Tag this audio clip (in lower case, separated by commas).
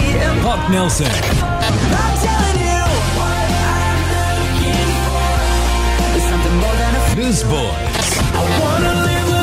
speech, music